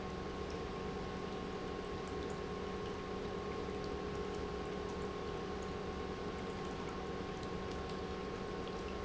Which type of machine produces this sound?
pump